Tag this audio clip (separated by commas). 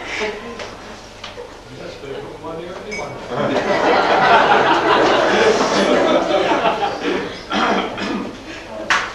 woman speaking, Speech, Male speech